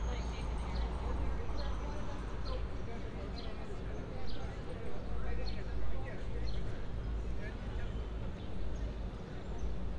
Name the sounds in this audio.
person or small group talking